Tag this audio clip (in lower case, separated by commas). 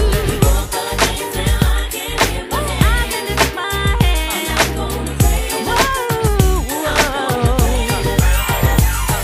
exciting music, rhythm and blues, music